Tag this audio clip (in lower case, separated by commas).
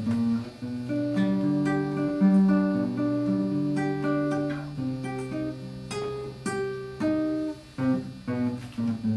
acoustic guitar, guitar, plucked string instrument, strum, musical instrument, music